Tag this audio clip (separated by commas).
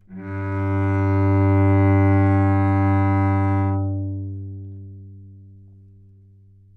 Musical instrument, Bowed string instrument, Music